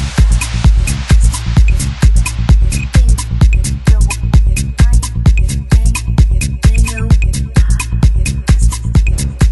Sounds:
Disco, House music, Drum and bass, Music, Techno, Trance music

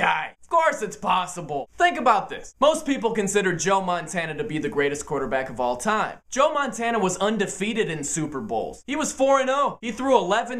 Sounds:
Speech

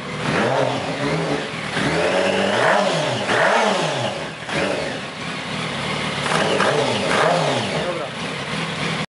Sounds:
Car, Medium engine (mid frequency), Accelerating, Speech, Vehicle

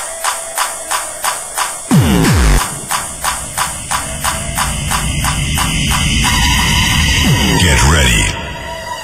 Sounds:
Cacophony, Music, Speech

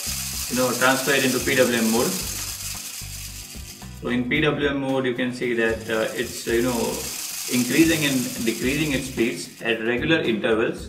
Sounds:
Speech

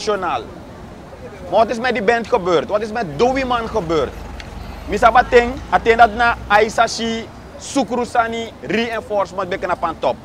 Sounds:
Speech

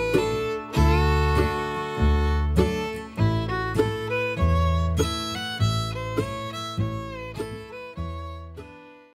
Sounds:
Violin, Music

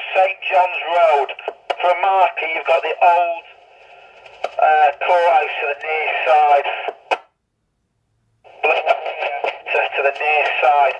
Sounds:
police radio chatter

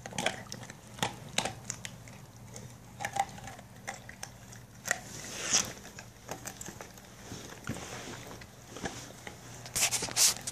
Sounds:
people eating

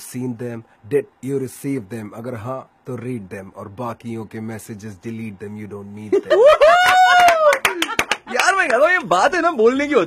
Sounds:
Speech

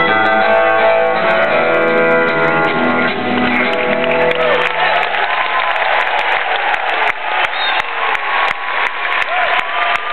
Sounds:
Music

